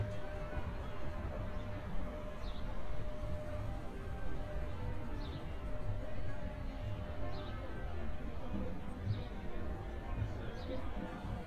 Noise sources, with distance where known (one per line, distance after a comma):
music from an unclear source, far
person or small group talking, far